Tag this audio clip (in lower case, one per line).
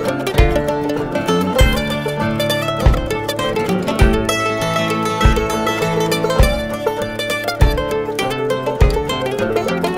rhythm and blues
music